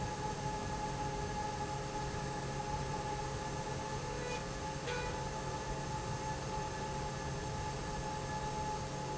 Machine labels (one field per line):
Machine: slide rail